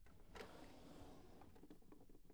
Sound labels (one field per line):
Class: drawer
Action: opening